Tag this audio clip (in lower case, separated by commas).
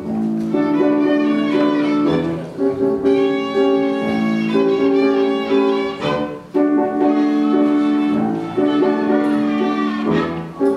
music, fiddle, musical instrument